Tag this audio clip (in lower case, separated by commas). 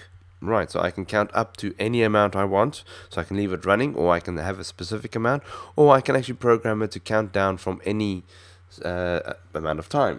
speech